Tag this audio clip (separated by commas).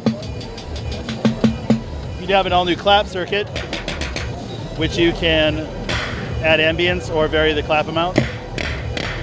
Speech